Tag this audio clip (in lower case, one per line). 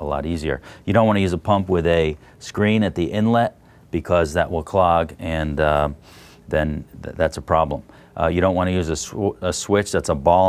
speech